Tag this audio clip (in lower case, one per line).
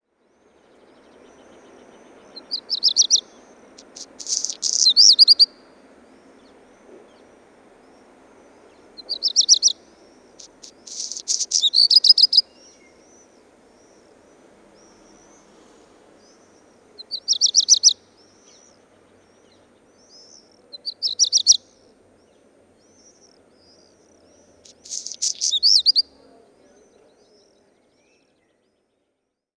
wild animals
bird call
animal
bird